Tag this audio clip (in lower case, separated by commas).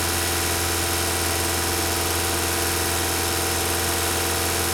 motor vehicle (road), vehicle, car